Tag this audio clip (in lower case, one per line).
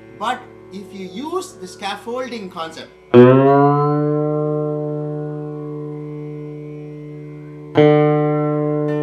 speech
carnatic music
plucked string instrument
music
musical instrument